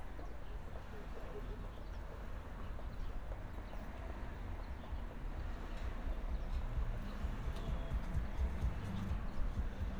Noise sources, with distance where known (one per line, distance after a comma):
engine of unclear size, far